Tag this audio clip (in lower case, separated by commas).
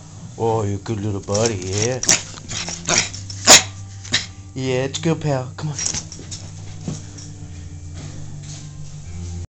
yip, speech